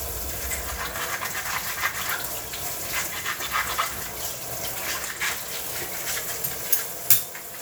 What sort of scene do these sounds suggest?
kitchen